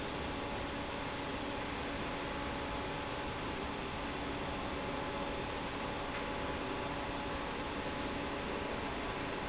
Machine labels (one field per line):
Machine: fan